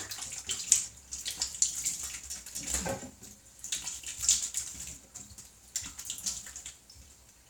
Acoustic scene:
restroom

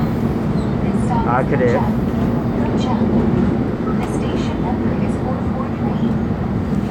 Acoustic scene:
subway train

